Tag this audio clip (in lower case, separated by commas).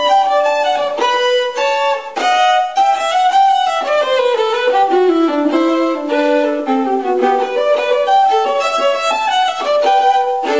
musical instrument, music, fiddle